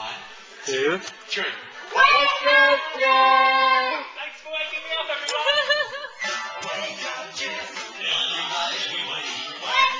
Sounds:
Speech, Music

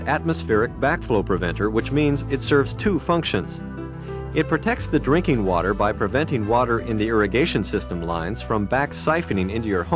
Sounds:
Speech, Music

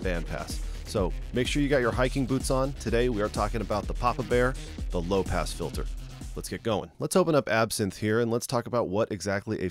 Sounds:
Speech, Music

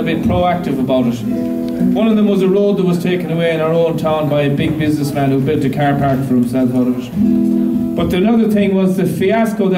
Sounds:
Music, Speech

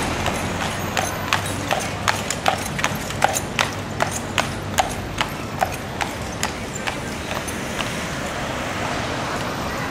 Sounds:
Animal, Clip-clop

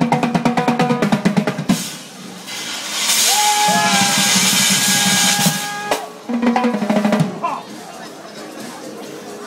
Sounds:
Speech, Percussion, Music

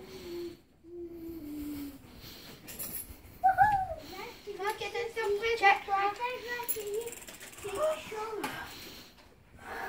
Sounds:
Speech

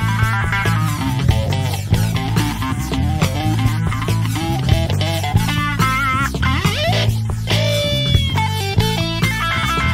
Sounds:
Plucked string instrument, Electric guitar, Strum, Music, Bass guitar, Acoustic guitar, Guitar, Musical instrument

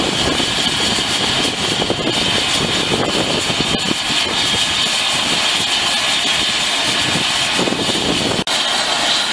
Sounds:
Helicopter, Vehicle

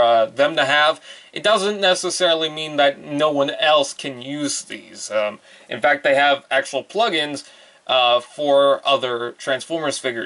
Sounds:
Speech

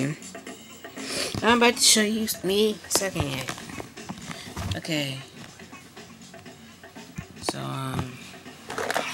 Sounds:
Music, Speech

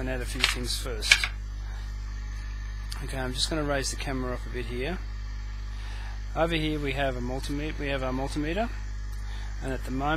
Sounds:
Speech

